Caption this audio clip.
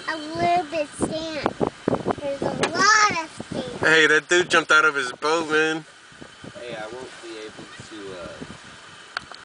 A young child is talking meanwhile two men are conversing with one another, wind is gusting in the background